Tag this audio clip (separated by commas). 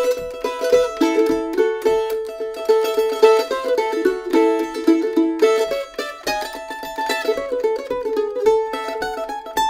playing mandolin